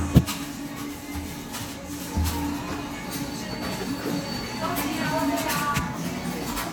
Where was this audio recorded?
in a cafe